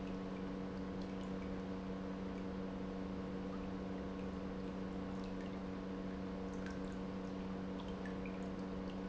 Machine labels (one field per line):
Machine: pump